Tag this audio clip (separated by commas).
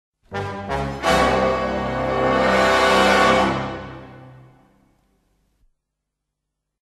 Music